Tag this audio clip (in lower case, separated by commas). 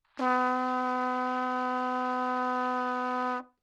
music, musical instrument, brass instrument, trumpet